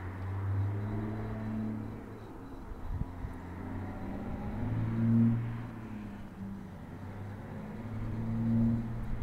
An engine is revving up in the far distance